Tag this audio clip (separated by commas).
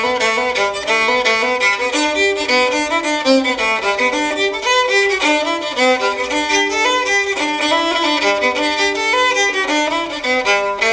Musical instrument, fiddle, Music